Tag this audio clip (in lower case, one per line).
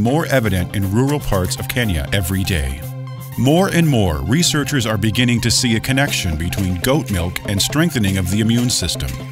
speech
music